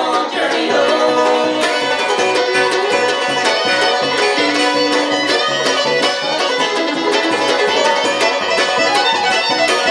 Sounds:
country
bluegrass
music

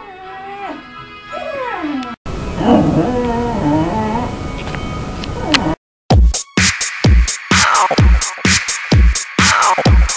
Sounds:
music
dog
pets
animal
whimper (dog)

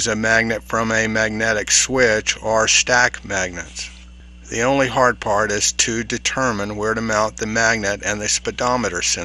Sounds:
speech

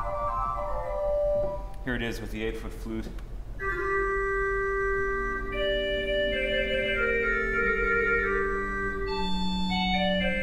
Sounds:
speech
organ
keyboard (musical)
piano
musical instrument
music
classical music

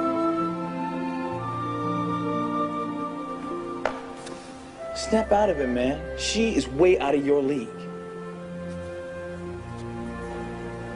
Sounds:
music
speech

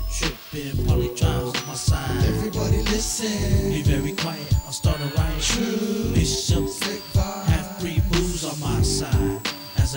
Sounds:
dance music
music
background music

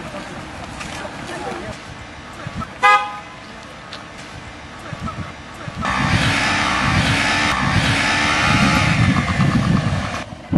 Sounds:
speech
honking

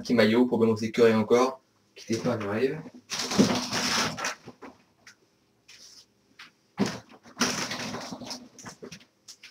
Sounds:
speech

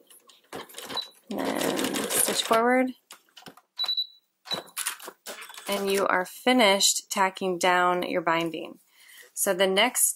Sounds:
speech
sewing machine

